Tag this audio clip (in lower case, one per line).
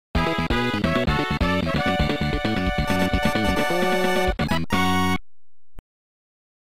background music
music